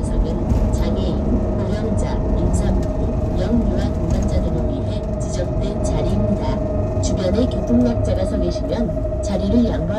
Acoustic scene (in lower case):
bus